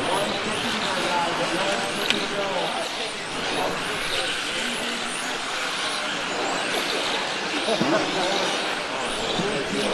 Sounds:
Car, auto racing

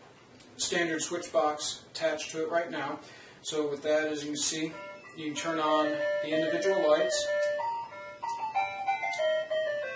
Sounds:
inside a small room, Music, Speech

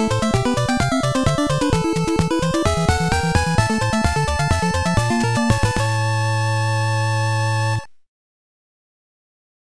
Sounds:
Soundtrack music, Music

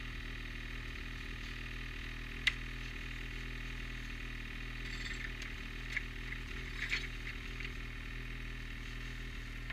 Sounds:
driving snowmobile

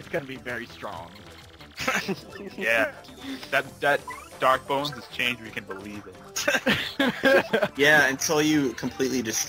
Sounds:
Speech, Music

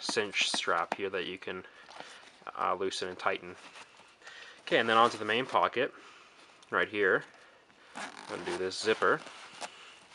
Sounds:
Speech, inside a small room

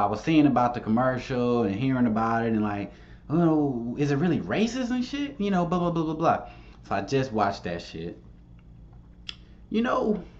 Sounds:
Speech

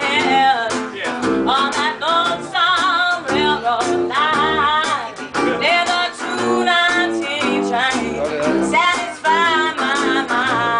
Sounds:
Jazz, Speech, Music

